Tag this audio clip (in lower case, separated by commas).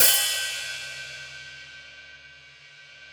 cymbal, musical instrument, music, hi-hat, percussion